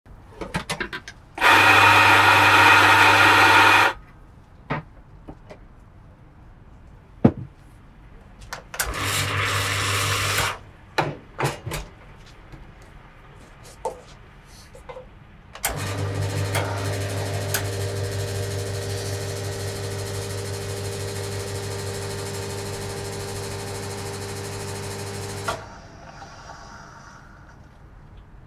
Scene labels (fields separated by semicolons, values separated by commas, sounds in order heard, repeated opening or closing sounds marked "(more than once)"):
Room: kitchen; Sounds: coffee machine